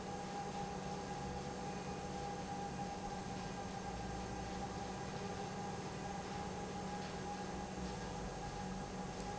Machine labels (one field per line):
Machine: pump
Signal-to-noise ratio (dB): 0 dB